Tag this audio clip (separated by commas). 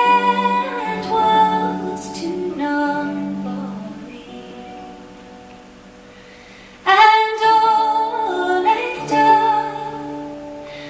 Music